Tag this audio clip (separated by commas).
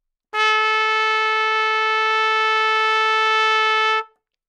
Music, Musical instrument, Trumpet, Brass instrument